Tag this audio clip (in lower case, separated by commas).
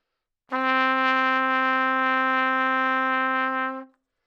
brass instrument, musical instrument, trumpet, music